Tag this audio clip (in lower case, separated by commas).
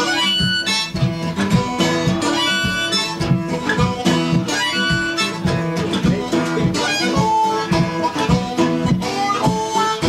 music